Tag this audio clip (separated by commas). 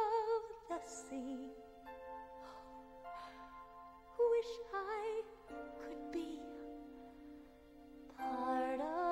Singing, Lullaby, Music